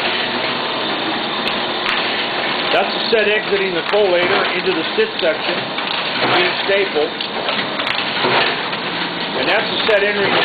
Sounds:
speech

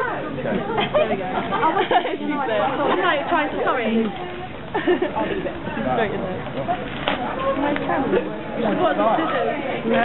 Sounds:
speech

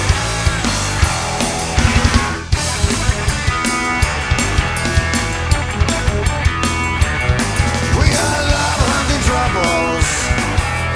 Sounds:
music

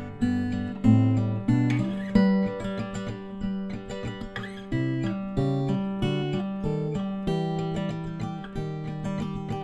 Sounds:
guitar
musical instrument
strum
music
plucked string instrument
acoustic guitar

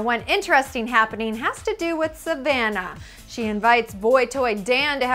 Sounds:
music
speech

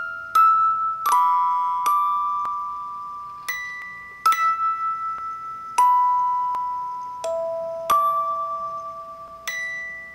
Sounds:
music

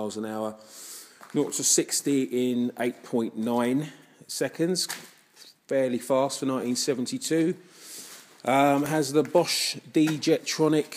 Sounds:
speech

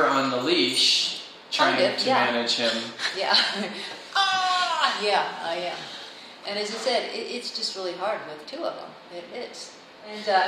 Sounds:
speech

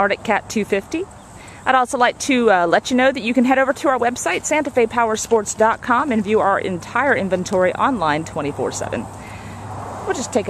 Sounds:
speech

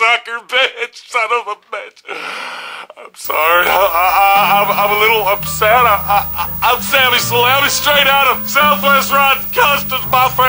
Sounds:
speech
music

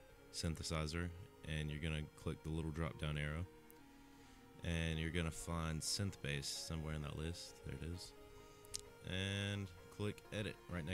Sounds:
speech

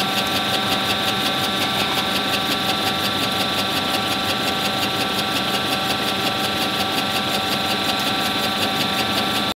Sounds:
engine
idling

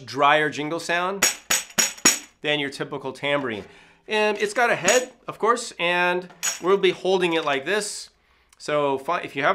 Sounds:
speech
music

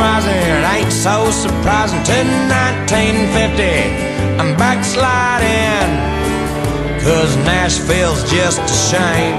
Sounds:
music
country

